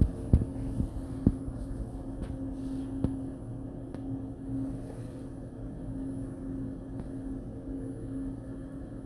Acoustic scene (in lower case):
elevator